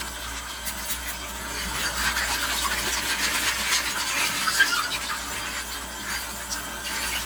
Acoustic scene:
kitchen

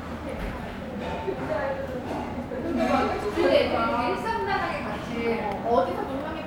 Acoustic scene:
restaurant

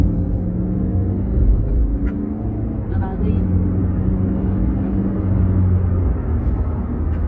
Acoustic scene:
car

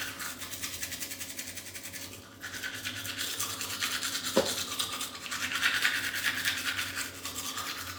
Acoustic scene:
restroom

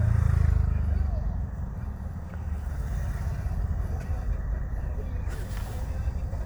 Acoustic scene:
car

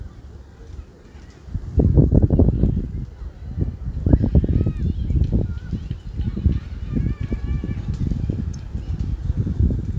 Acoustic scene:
residential area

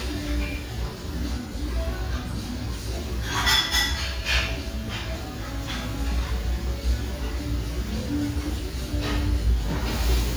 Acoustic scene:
restaurant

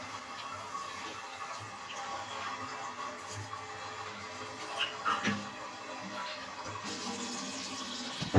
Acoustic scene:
restroom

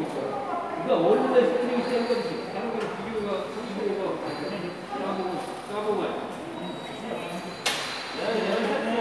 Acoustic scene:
subway station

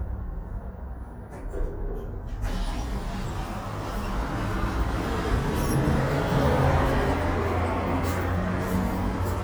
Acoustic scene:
elevator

